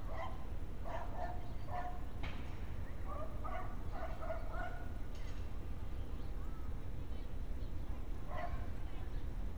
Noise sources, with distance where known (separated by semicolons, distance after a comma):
person or small group shouting, far; dog barking or whining, near